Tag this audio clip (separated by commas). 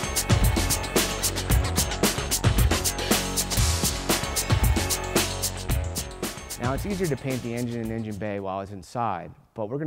Speech, Music